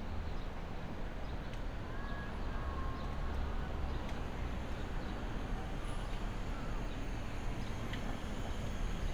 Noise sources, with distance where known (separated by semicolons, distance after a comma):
engine of unclear size